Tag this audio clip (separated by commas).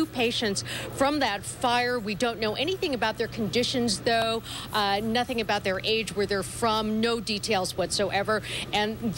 Speech